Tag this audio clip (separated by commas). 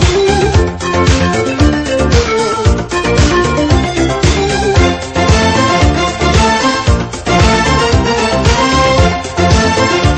Music